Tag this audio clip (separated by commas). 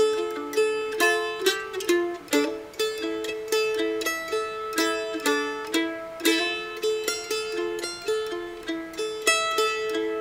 playing mandolin